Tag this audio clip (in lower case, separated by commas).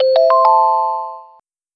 telephone, ringtone, alarm